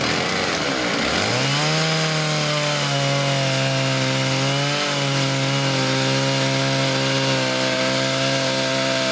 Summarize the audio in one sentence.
High powered loud vibrations from a power tool